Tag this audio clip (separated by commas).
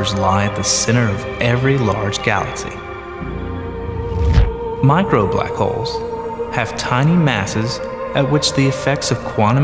Music, Speech